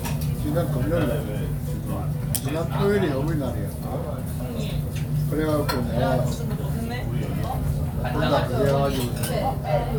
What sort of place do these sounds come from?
restaurant